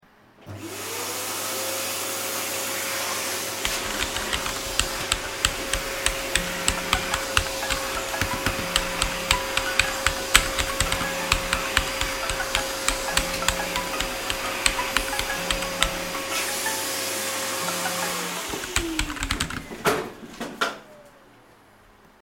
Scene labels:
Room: office; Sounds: vacuum cleaner, keyboard typing, phone ringing

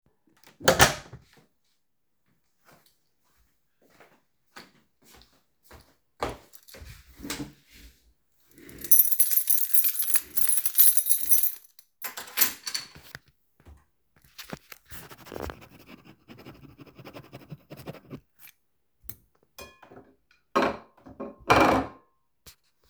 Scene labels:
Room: living room; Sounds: door, footsteps, keys, cutlery and dishes

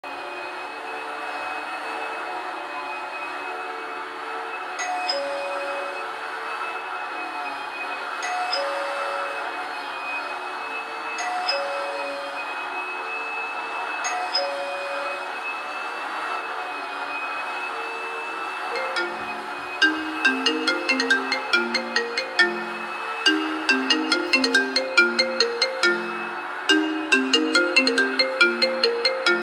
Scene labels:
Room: living room; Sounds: vacuum cleaner, bell ringing, phone ringing

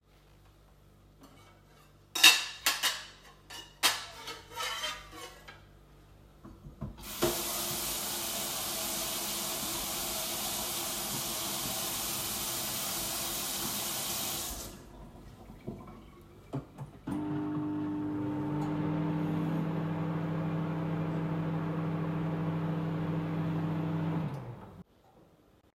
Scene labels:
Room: kitchen; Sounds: cutlery and dishes, running water, microwave

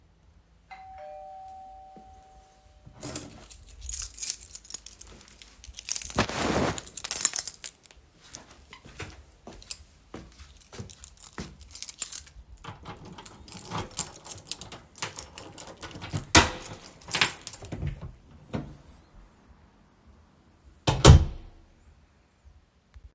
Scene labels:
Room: bedroom; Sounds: bell ringing, keys, footsteps, door

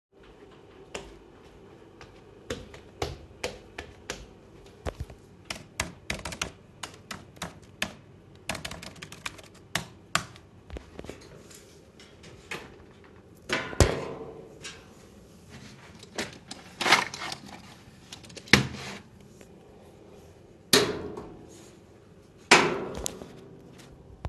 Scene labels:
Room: living room; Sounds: footsteps, keyboard typing, wardrobe or drawer (more than once)

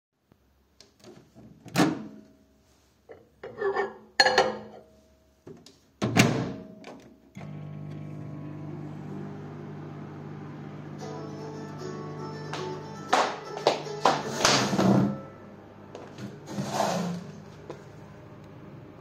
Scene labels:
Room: kitchen; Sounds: microwave, cutlery and dishes, phone ringing, footsteps

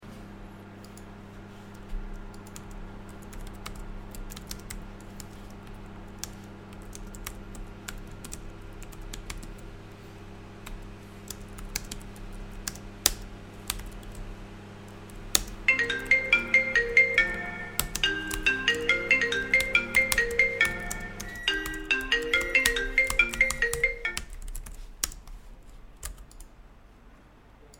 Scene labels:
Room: living room; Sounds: microwave, keyboard typing, phone ringing

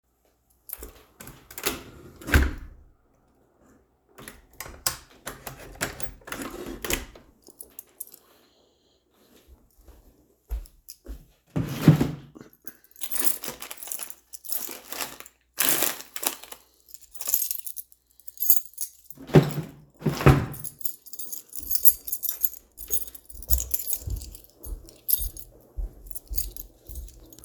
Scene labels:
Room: living room; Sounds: window, wardrobe or drawer (more than once), keys, footsteps

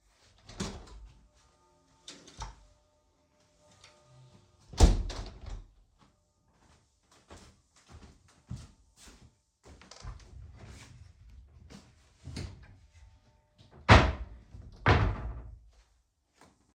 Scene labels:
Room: bedroom; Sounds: window, footsteps, wardrobe or drawer

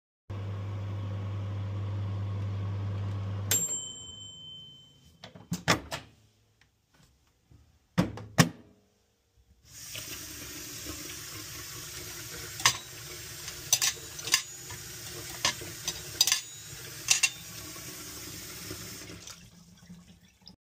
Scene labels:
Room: kitchen; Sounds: microwave, running water, cutlery and dishes

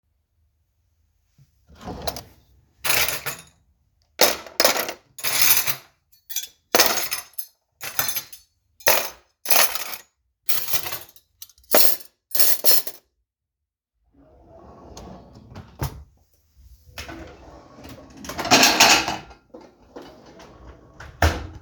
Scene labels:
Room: kitchen; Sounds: wardrobe or drawer (more than once), cutlery and dishes, phone ringing

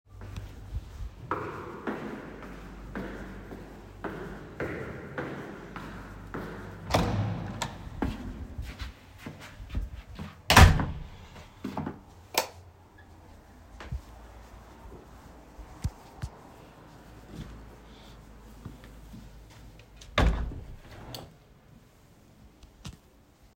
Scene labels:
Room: hallway; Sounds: footsteps, door (more than once), light switch, window

